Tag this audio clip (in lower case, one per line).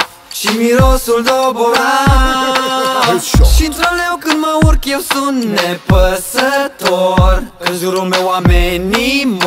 music